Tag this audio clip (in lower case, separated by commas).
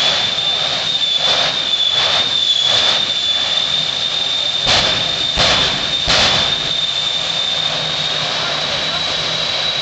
truck